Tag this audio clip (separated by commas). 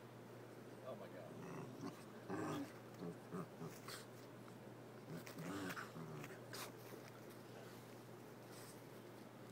Domestic animals, Animal, Whimper (dog)